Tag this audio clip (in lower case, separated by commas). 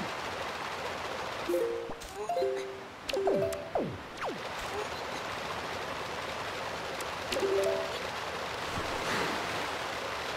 music, rustling leaves